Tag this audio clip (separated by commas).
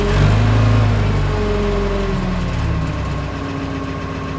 Engine